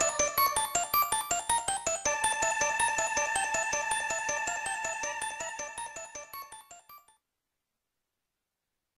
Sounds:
music

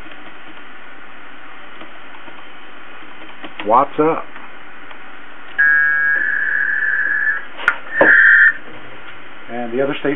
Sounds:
speech

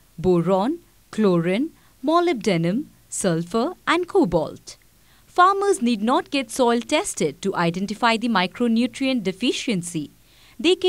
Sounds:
speech

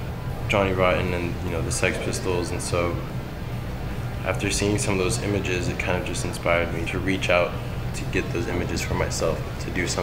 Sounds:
speech

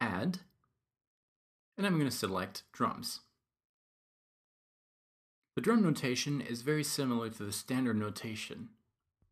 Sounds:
speech

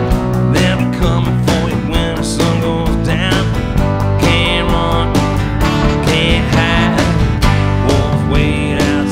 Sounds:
music

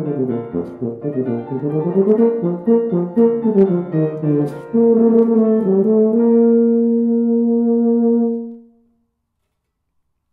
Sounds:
brass instrument

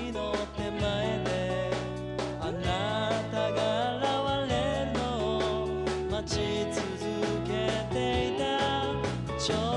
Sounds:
music

